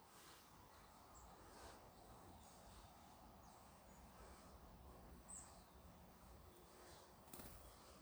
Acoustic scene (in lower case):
park